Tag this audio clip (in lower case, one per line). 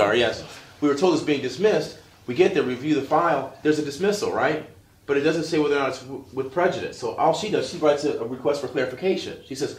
speech